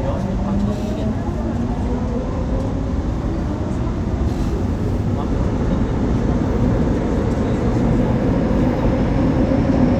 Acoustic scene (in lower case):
subway train